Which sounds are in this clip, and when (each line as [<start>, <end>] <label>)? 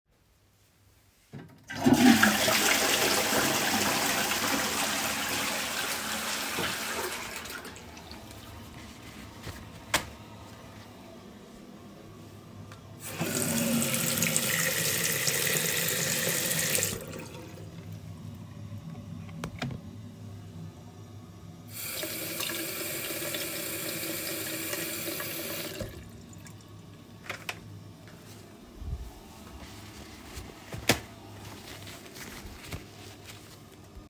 [1.42, 9.91] toilet flushing
[12.85, 17.35] running water
[21.61, 26.43] running water